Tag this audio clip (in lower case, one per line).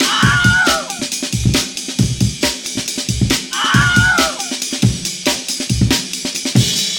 screaming
human voice